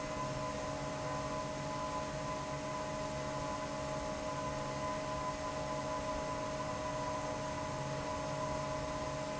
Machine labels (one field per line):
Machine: fan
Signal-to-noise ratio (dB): -6 dB